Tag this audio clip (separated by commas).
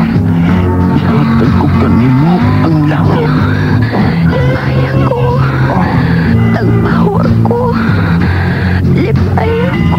Speech, Music, Radio